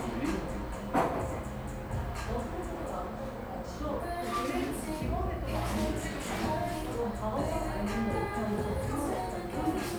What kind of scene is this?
cafe